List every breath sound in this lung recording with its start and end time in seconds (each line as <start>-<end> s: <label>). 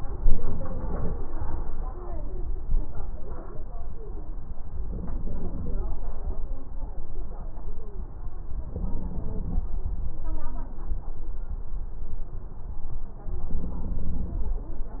4.83-5.84 s: inhalation
8.63-9.65 s: inhalation
13.58-14.60 s: inhalation